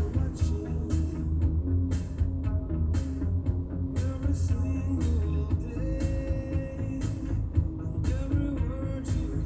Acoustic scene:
car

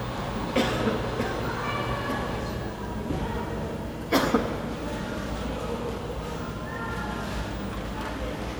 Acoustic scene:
cafe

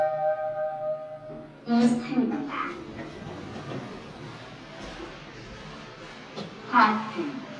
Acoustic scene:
elevator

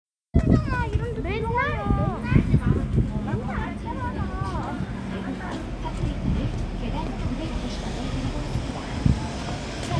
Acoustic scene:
residential area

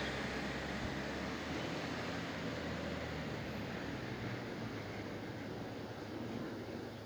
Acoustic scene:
residential area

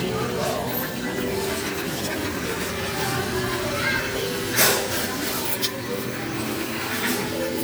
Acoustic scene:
crowded indoor space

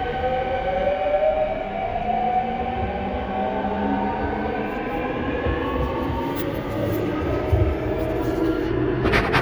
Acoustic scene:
subway station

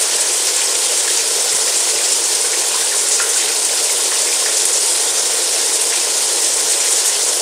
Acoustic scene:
restroom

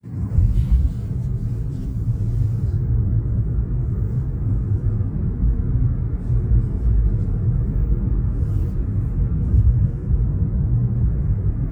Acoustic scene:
car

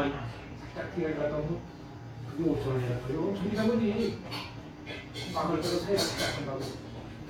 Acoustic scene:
restaurant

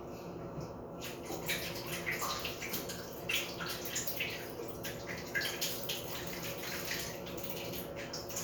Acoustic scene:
restroom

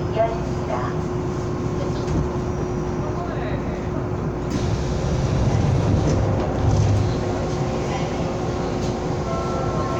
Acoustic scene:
subway train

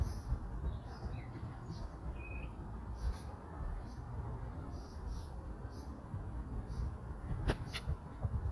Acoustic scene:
park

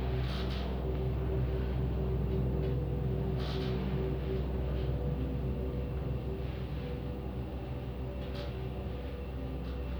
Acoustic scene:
elevator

